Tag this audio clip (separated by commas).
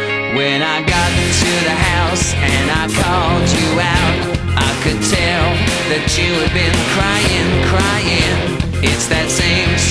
Music